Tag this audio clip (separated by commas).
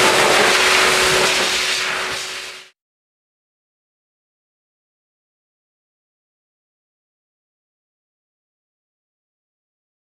inside a small room, Silence